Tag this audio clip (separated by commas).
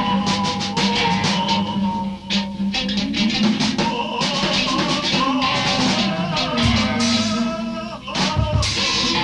Music